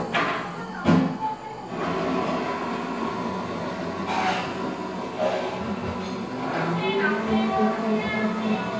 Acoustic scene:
cafe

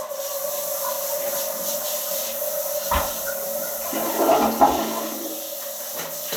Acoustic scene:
restroom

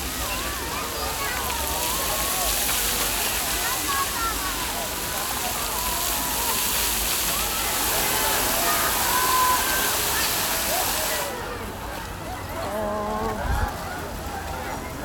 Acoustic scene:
park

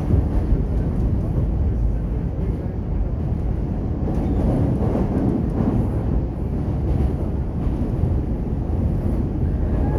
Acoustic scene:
subway train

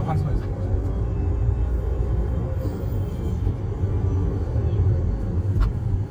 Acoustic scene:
car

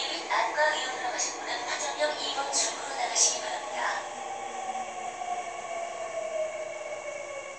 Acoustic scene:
subway train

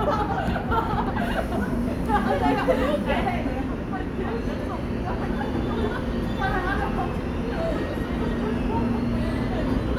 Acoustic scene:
subway station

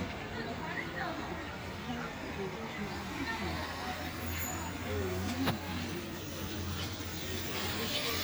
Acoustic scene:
park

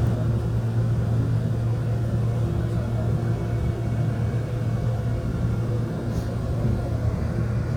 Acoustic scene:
subway train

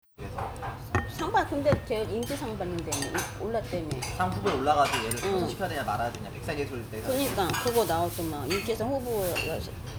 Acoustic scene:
restaurant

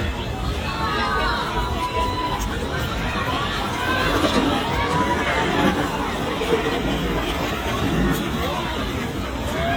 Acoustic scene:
park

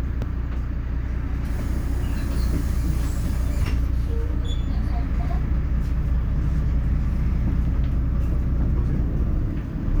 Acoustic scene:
bus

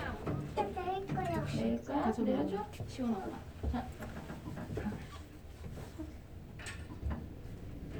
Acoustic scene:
elevator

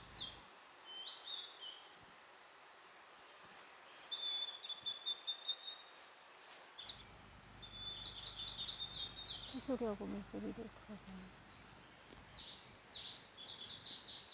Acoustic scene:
park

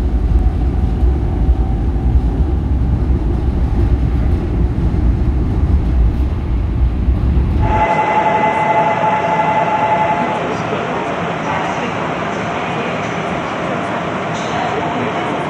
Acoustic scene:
subway train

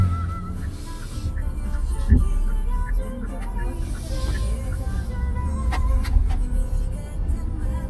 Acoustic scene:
car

